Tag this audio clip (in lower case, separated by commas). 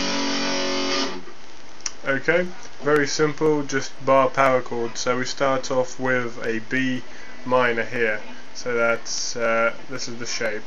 plucked string instrument, strum, speech, music, musical instrument, guitar, electric guitar